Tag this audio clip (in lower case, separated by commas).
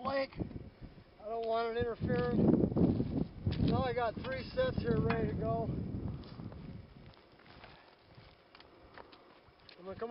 speech, outside, rural or natural